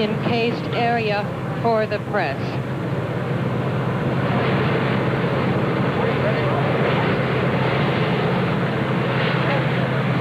A woman talking followed by muffled talking in the distance